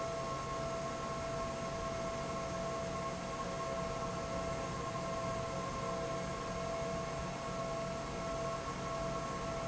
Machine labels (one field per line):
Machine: fan